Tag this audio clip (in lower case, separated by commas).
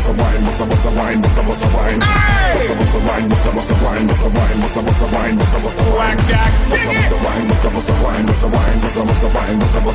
music